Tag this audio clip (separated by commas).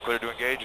Speech, Human voice, Male speech